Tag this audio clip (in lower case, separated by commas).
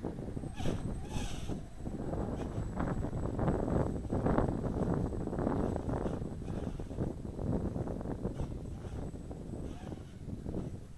wind noise (microphone), wind noise